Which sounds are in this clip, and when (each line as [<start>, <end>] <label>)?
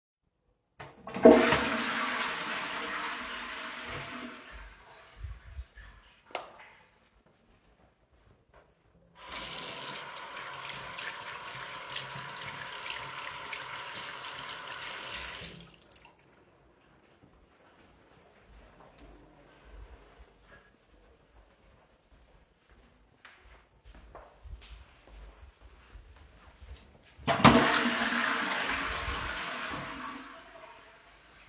[0.76, 4.57] toilet flushing
[5.07, 5.79] toilet flushing
[6.21, 6.59] light switch
[9.11, 16.39] running water
[17.17, 27.14] footsteps
[27.19, 31.49] toilet flushing